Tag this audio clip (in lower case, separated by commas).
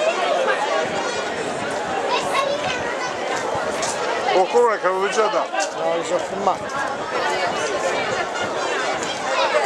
crowd, speech